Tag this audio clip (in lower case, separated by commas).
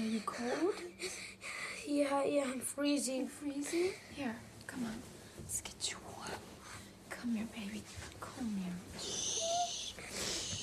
whispering, people whispering